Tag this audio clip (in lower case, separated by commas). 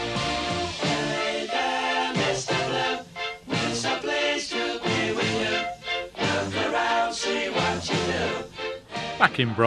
music, speech